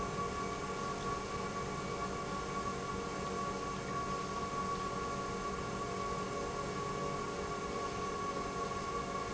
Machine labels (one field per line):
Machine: pump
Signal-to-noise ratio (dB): -6 dB